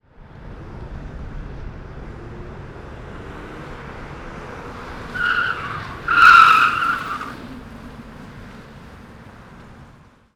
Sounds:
Vehicle, Motor vehicle (road), Car

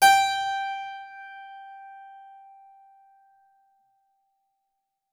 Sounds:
Musical instrument, Music, Keyboard (musical)

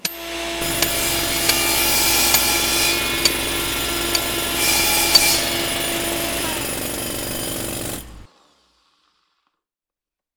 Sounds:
Tools, Hammer, Sawing

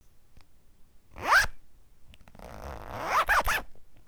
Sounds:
Zipper (clothing), home sounds

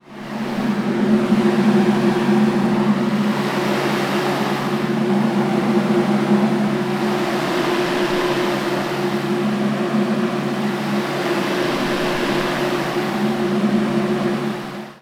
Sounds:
Mechanical fan, Mechanisms

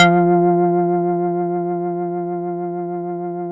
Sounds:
Organ, Musical instrument, Keyboard (musical), Music

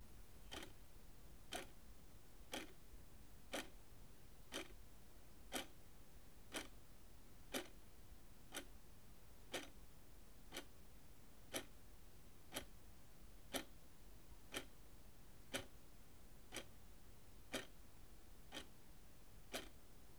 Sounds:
Mechanisms, Clock

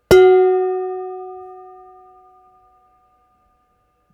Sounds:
dishes, pots and pans, home sounds

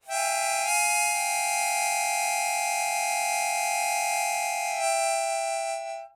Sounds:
Music, Harmonica, Musical instrument

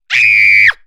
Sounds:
Human voice, Screaming

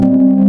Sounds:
Music, Musical instrument, Keyboard (musical), Piano

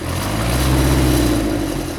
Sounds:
Engine

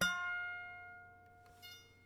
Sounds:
Musical instrument, Music, Harp

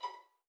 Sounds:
Musical instrument, Music, Bowed string instrument

